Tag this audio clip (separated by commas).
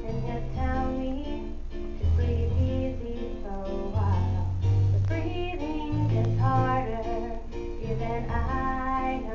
Female singing, Music